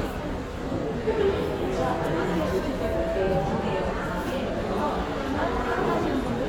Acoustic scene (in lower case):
crowded indoor space